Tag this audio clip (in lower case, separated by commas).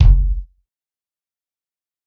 bass drum, musical instrument, music, percussion, drum